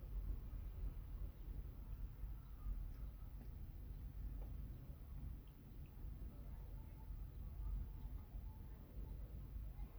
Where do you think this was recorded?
in a residential area